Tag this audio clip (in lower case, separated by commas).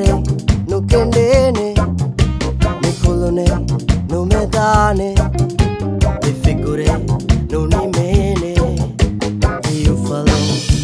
pop music, music, funk